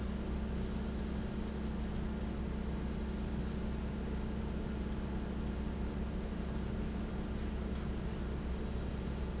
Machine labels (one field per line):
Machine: fan